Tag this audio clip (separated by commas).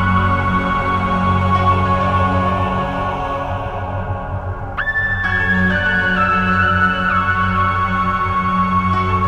Background music, Music